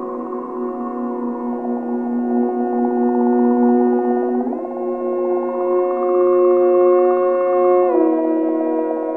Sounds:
music

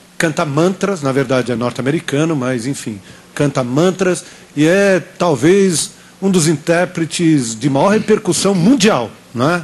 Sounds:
narration, speech

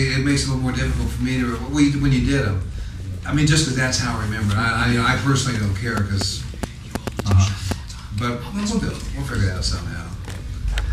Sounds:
speech

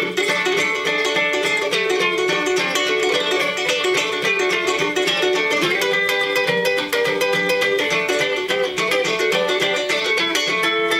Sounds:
music, musical instrument, plucked string instrument, ukulele

